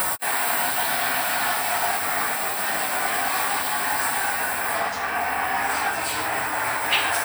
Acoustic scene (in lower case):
restroom